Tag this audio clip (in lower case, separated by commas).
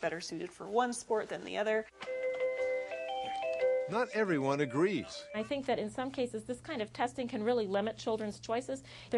inside a small room, music, speech